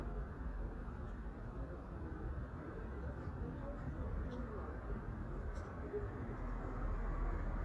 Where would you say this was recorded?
in a residential area